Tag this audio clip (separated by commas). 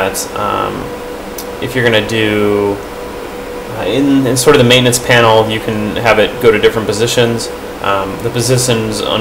Speech